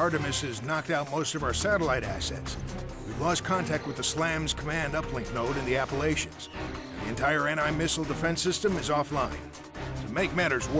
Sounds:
speech, music

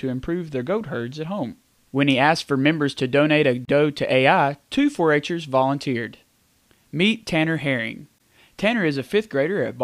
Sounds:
speech

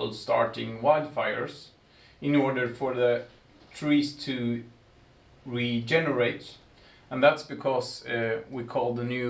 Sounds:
speech

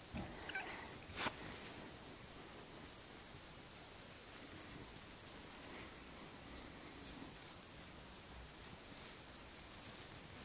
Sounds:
cat, animal, domestic animals

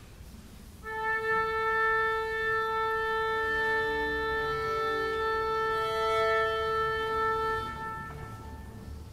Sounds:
music, bowed string instrument, orchestra, musical instrument, classical music, fiddle

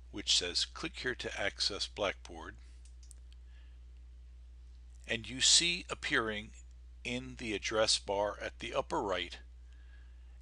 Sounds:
speech

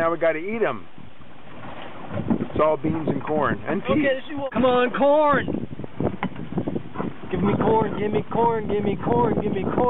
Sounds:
water vehicle, speech

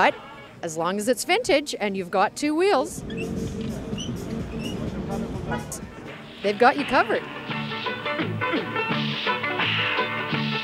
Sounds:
speech, music

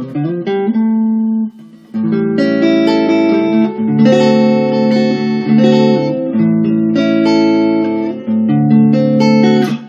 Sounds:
music

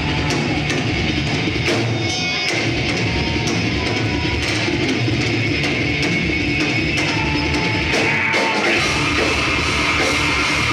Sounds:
pop music, music

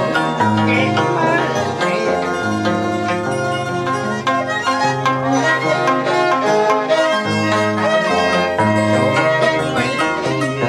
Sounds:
music, harp

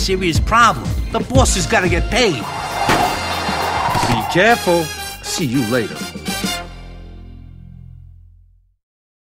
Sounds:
speech, music

